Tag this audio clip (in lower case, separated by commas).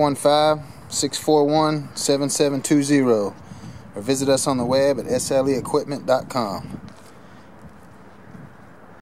speech